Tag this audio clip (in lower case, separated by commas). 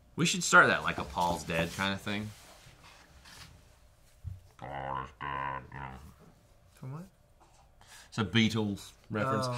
inside a small room, speech